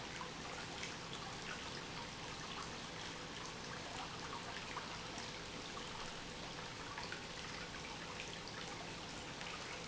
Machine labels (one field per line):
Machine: pump